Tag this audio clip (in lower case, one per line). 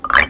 musical instrument
marimba
music
percussion
mallet percussion